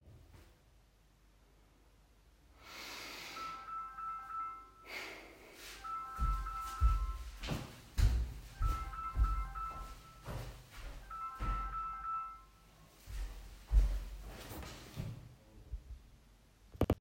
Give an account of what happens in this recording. A phone starts ringing on a table in the living room. I walked towards the phone while it was still ringing and turned it off.